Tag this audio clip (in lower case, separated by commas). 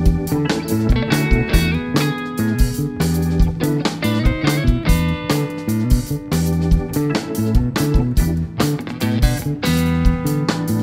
music, jazz